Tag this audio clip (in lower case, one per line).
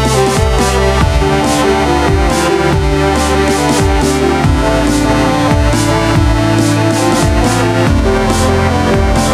dubstep
music
electronic music